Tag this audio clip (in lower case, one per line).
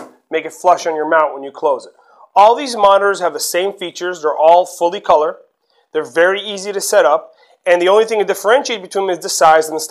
speech